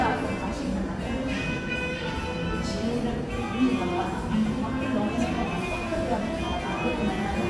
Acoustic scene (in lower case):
cafe